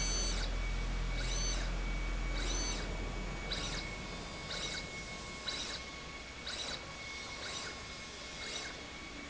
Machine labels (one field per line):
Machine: slide rail